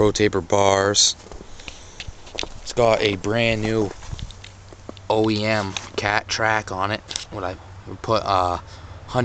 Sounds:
Speech

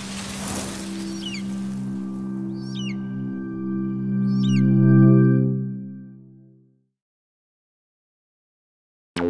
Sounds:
Music

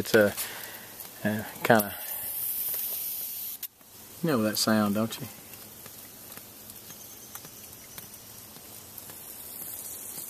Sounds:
Spray, Speech

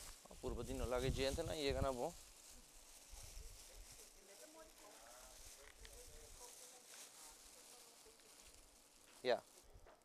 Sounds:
Speech

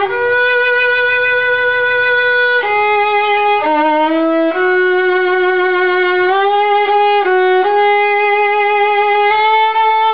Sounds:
fiddle, Music, Musical instrument

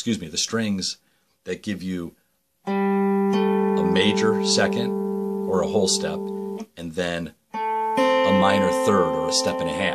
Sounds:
Speech, Music

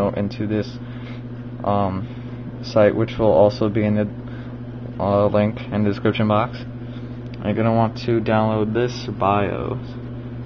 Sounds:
inside a small room, Speech

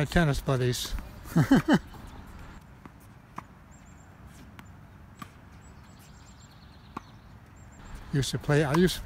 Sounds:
playing tennis

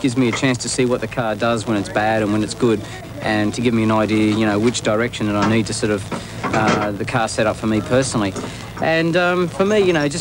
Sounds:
Speech

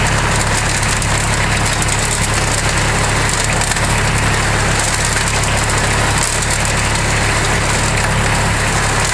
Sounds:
outside, rural or natural, Vehicle

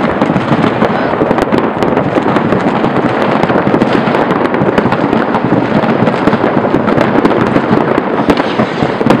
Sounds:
Fireworks, fireworks banging

